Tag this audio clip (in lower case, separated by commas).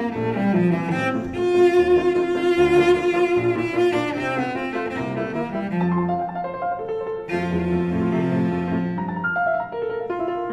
musical instrument, cello, piano, playing cello, music, keyboard (musical), bowed string instrument